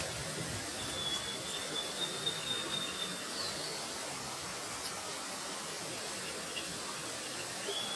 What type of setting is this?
park